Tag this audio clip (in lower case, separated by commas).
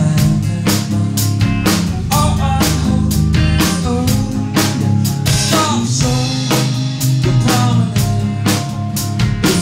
music